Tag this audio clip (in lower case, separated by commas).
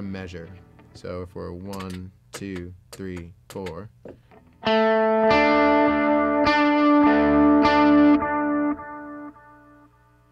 music, speech, guitar